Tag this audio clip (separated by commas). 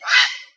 Bird vocalization, Wild animals, Bird, Animal